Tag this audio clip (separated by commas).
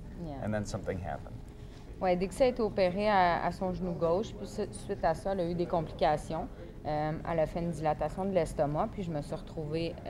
Speech